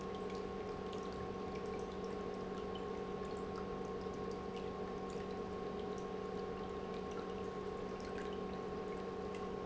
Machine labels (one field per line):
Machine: pump